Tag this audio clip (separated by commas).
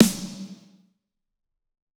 Musical instrument, Drum, Music, Percussion, Snare drum